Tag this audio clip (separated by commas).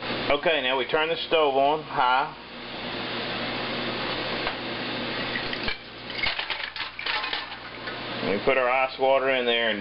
Speech